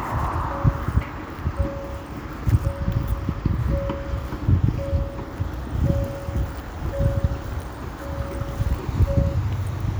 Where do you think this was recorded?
on a street